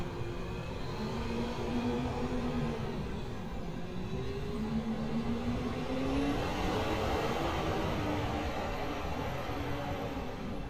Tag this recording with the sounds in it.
engine of unclear size